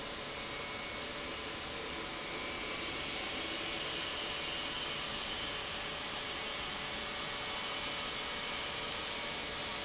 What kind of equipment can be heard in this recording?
pump